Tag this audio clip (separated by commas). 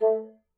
woodwind instrument, Music, Musical instrument